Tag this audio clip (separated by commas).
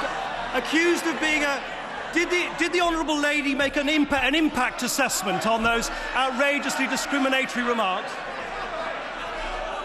Speech